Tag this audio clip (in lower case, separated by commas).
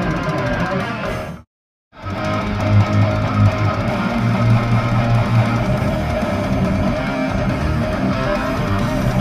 electric guitar, music, musical instrument, guitar